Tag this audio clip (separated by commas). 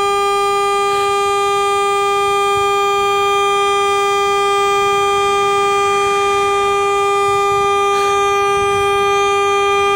honking